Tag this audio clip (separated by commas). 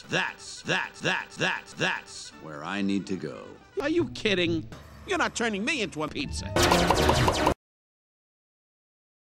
Speech